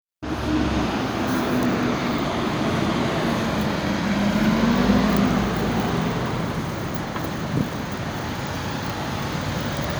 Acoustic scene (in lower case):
street